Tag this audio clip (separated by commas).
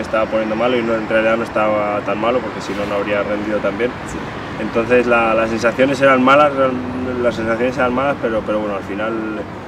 outside, urban or man-made, Speech